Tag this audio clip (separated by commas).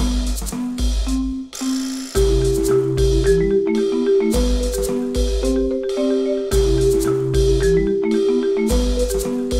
xylophone, Percussion